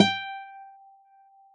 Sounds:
Guitar, Musical instrument, Acoustic guitar, Music, Plucked string instrument

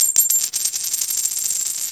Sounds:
Coin (dropping), home sounds

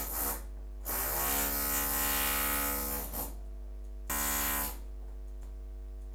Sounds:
Tools

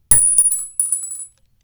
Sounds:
Glass, Chink

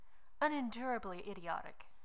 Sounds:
Human voice, Speech, Female speech

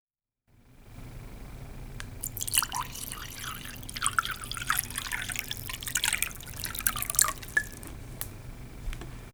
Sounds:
Liquid

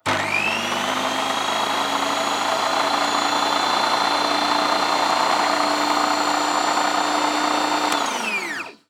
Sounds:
Domestic sounds

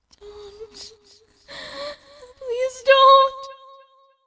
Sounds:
Human voice, Crying

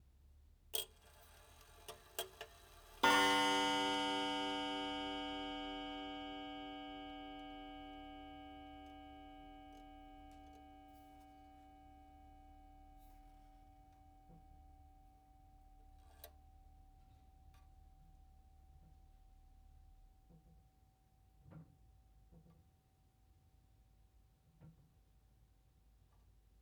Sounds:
Clock, Mechanisms

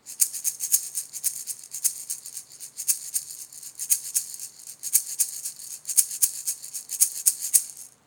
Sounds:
Respiratory sounds, Breathing

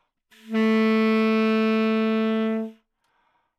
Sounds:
Wind instrument, Musical instrument, Music

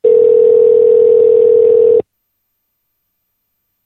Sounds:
Alarm, Telephone

